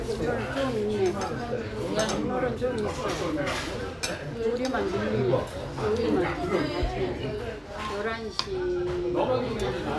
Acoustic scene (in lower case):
restaurant